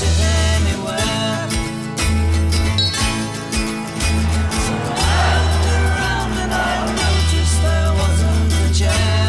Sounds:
music

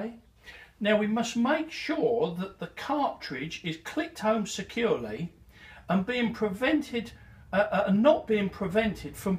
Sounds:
speech

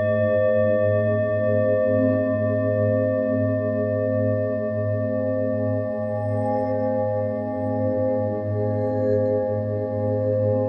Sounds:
singing bowl

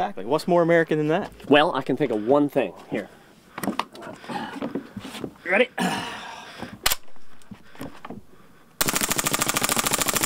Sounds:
speech

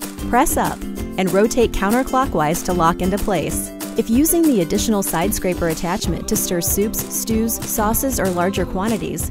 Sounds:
music
speech

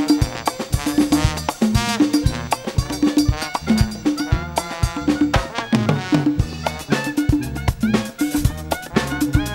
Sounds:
independent music
music

